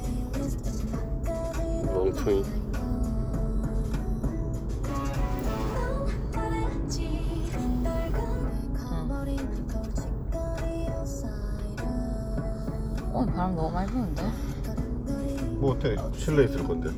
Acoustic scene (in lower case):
car